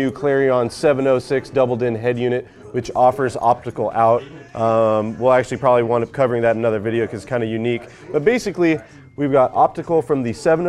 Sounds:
speech

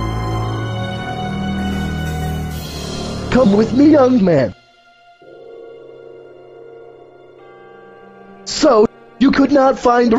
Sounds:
speech, music

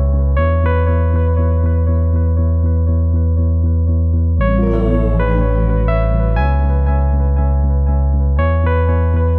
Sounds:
electric piano

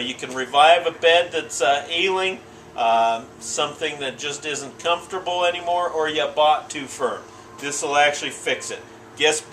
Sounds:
speech

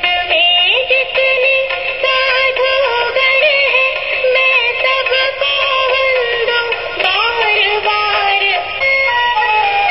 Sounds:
music, mantra

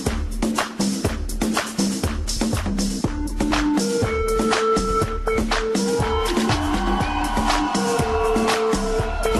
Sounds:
electronic dance music, electronic music, music, house music, musical instrument

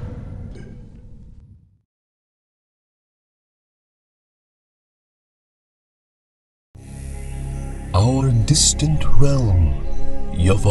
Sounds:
music, speech

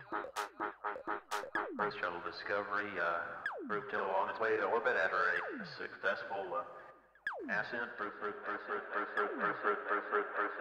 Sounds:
speech, electronic music, music

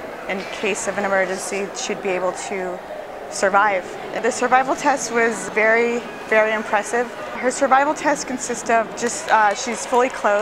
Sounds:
speech

